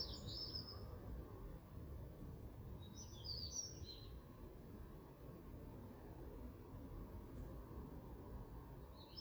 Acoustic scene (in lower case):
park